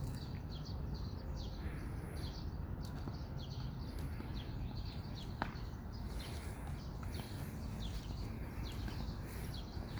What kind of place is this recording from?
park